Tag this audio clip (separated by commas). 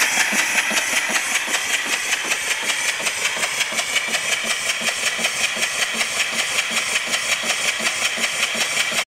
Engine, Medium engine (mid frequency), Idling